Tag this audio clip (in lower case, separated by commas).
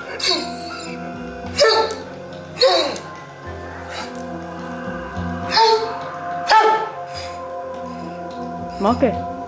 animal, dog, music, speech